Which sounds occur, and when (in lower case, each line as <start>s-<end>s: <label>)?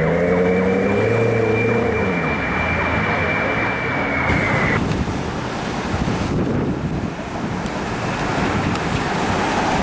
0.0s-2.1s: vroom
0.0s-4.7s: emergency vehicle
0.0s-4.8s: car
0.0s-9.8s: wind
4.7s-5.3s: wind noise (microphone)
4.7s-9.8s: traffic noise
4.8s-5.0s: clicking
5.9s-7.2s: wind noise (microphone)
7.3s-7.7s: wind noise (microphone)
7.6s-7.8s: clicking
8.1s-8.2s: clicking
8.2s-8.9s: wind noise (microphone)
8.7s-8.9s: clicking